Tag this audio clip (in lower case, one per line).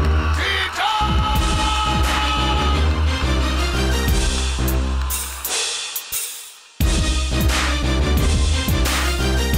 music
exciting music
background music
blues